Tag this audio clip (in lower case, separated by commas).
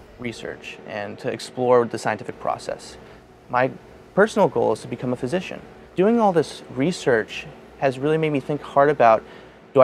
speech